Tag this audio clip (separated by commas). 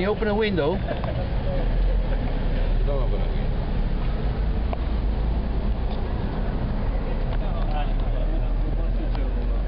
Speech